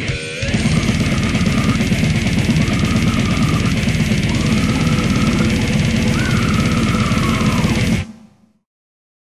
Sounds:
music

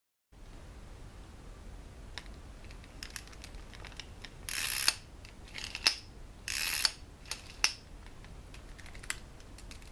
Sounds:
gears
ratchet
mechanisms

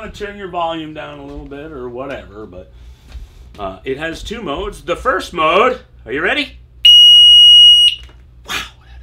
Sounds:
speech

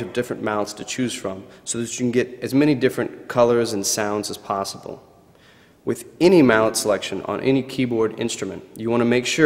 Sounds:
speech

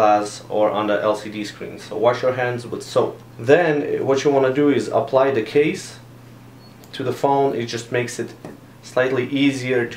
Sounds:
speech

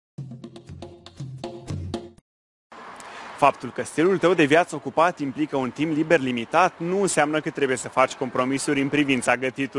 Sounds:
speech
music

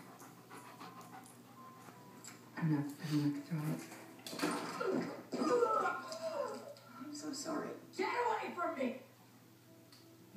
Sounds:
speech

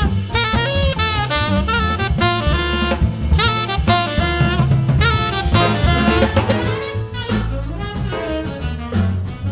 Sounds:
playing saxophone

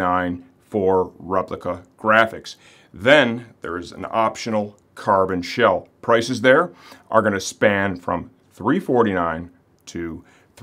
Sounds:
speech

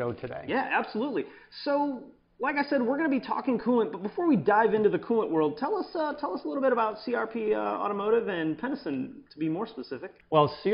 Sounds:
speech

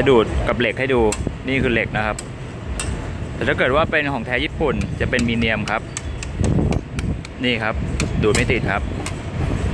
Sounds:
speech

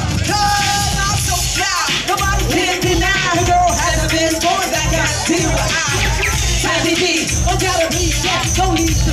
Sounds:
speech
music

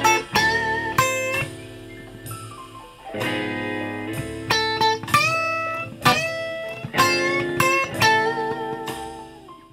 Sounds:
plucked string instrument
music
guitar
electric guitar
musical instrument

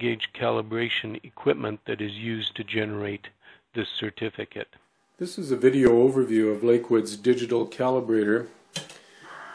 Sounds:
speech

